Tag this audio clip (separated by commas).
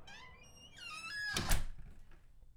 Slam, Domestic sounds, Door